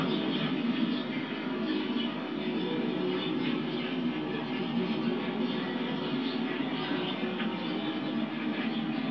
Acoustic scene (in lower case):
park